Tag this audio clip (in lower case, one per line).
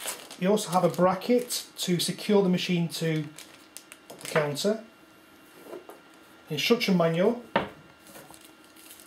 speech